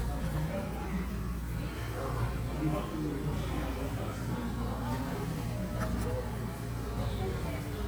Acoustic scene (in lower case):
cafe